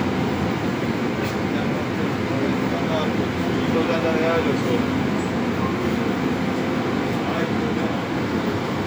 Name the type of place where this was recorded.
subway station